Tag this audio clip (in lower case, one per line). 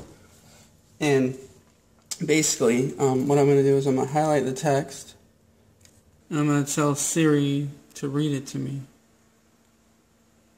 speech